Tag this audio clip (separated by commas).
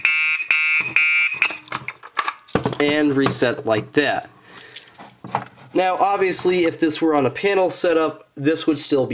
Alarm, Speech, Fire alarm